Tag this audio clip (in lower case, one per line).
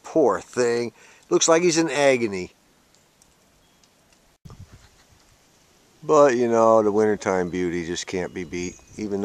speech